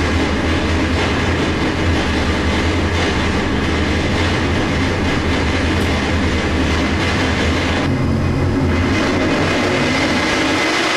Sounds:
engine, heavy engine (low frequency)

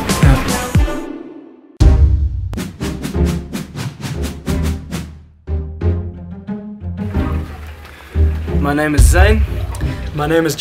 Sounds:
music, speech, male speech

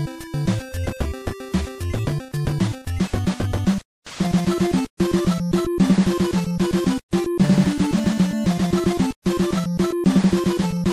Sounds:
background music, music, soundtrack music, theme music

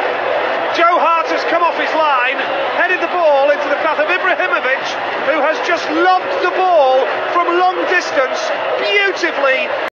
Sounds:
speech

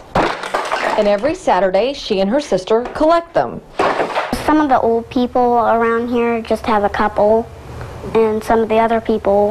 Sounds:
speech, inside a small room

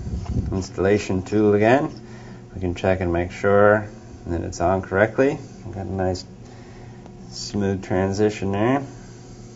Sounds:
speech, inside a large room or hall

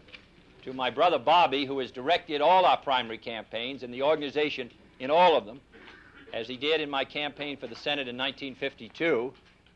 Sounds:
man speaking, speech, monologue

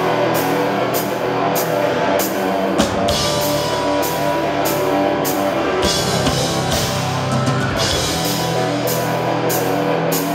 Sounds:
musical instrument, music

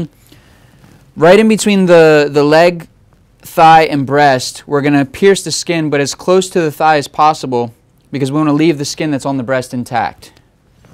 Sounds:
speech

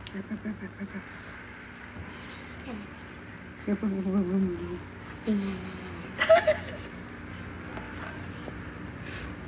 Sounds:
speech

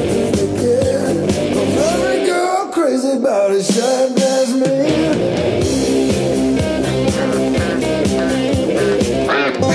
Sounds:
duck, quack, music

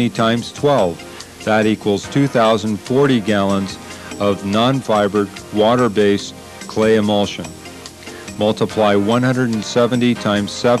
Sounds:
speech, music

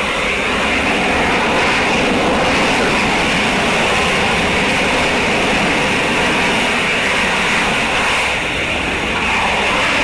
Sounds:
aircraft, engine

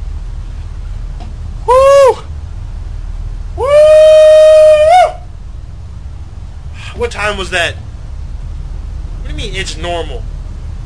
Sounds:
speech

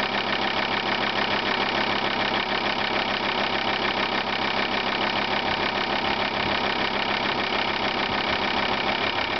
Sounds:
engine, vehicle, medium engine (mid frequency)

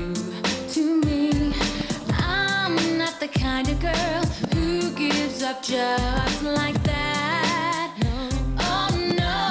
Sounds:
music of asia, singing

